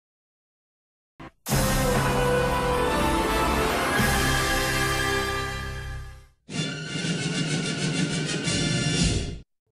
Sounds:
music

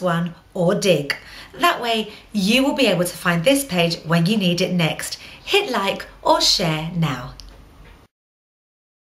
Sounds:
speech

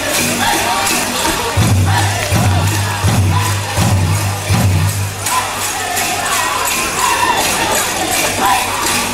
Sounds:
music, speech

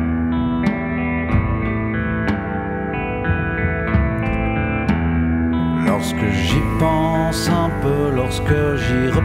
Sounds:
music, independent music

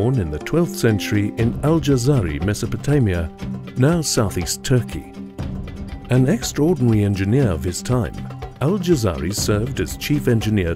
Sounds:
speech, music

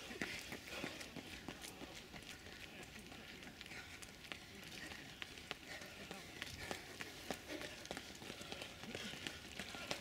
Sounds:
run, people running

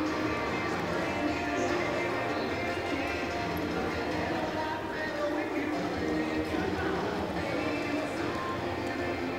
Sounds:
horse, animal, clip-clop, music

